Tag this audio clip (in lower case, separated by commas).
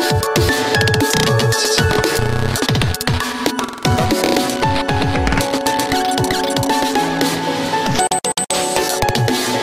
music